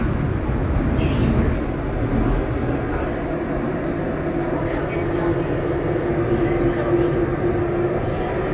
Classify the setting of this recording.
subway train